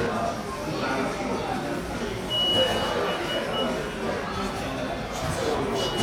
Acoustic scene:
cafe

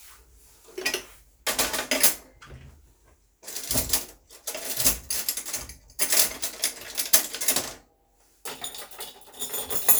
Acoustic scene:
kitchen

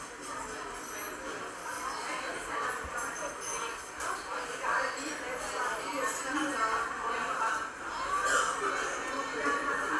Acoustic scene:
cafe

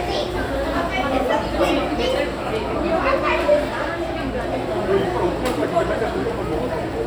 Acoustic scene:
crowded indoor space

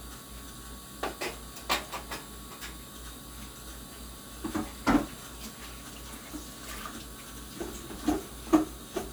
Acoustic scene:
kitchen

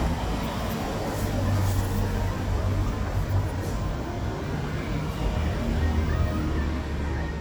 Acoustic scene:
street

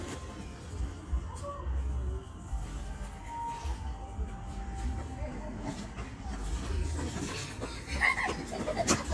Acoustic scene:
park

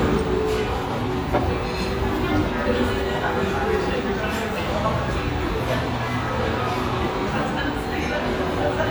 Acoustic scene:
restaurant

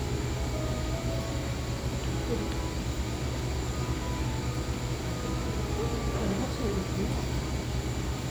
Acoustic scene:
cafe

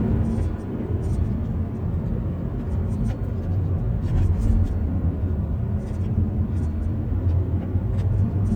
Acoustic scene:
car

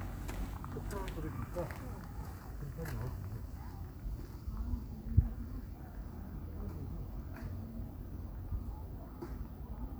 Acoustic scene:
residential area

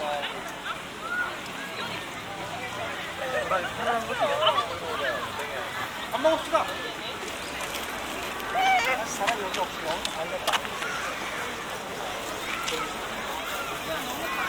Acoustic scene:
park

